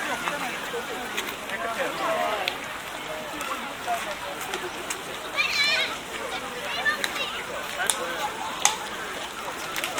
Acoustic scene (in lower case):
park